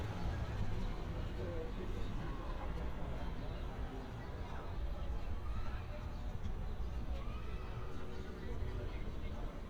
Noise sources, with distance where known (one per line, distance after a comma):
person or small group talking